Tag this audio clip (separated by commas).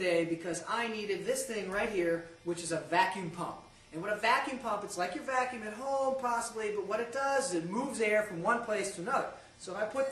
Speech